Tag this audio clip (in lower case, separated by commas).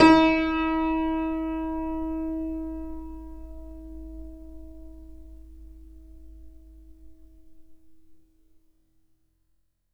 keyboard (musical), musical instrument, piano, music